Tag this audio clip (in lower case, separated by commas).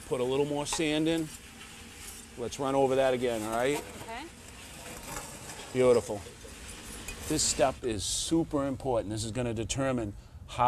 speech, outside, rural or natural